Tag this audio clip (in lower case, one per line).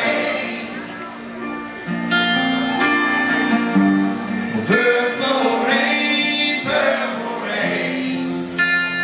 music
speech